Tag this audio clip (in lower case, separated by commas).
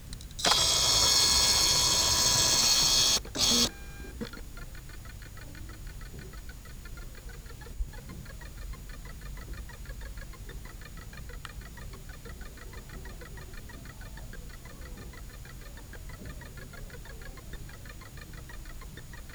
mechanisms, camera